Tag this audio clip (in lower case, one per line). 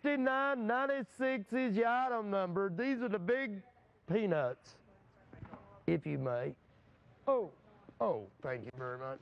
speech